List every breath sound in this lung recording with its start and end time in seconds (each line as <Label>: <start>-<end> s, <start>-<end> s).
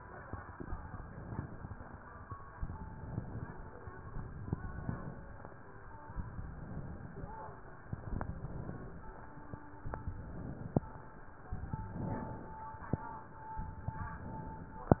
Inhalation: 0.49-1.75 s, 2.56-3.61 s, 4.15-5.20 s, 6.10-7.25 s, 7.98-9.13 s, 9.82-10.97 s, 11.51-12.65 s, 13.58-14.84 s